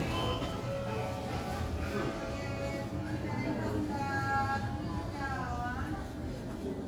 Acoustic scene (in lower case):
crowded indoor space